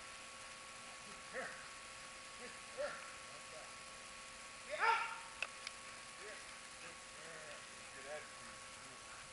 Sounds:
animal, speech, domestic animals, dog

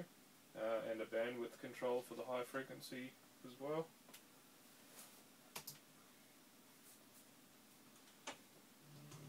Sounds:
music, speech

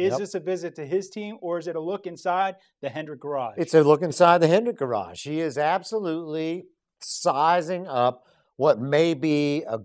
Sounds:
speech

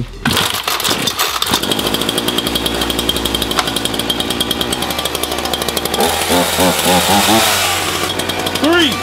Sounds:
chainsawing trees

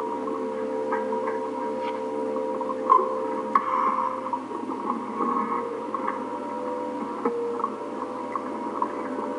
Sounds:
music

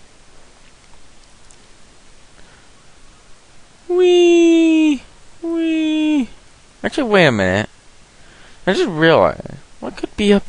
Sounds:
speech

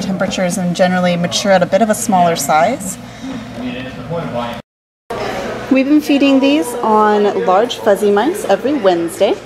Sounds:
speech, inside a large room or hall

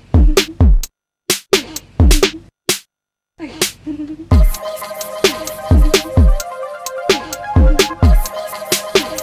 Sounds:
drum machine, music

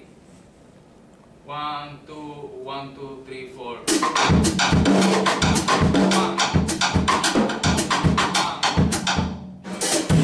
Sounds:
drum kit, musical instrument, music, percussion, inside a small room, drum, speech

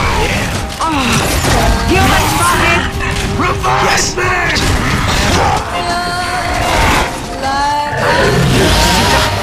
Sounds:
mechanisms

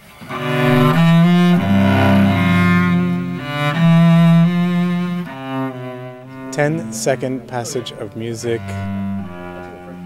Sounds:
bowed string instrument, cello

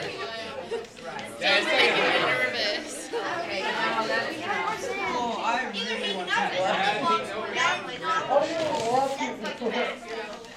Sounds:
speech

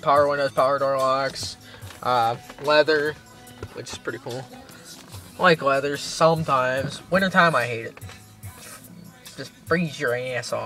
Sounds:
music, speech

